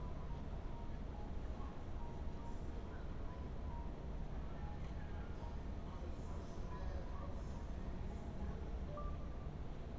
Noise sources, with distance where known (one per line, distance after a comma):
music from an unclear source, far